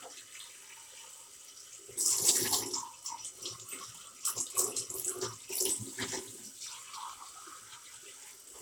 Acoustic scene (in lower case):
kitchen